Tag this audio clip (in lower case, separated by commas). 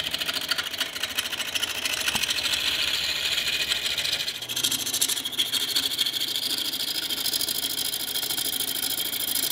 lathe spinning